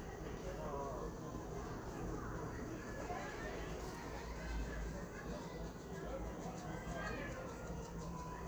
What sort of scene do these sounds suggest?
residential area